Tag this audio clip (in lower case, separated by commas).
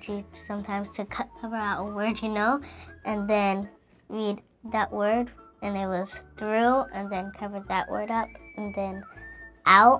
speech